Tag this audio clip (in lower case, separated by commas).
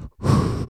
respiratory sounds, breathing